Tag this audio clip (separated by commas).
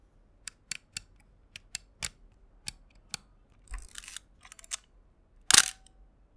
Mechanisms, Camera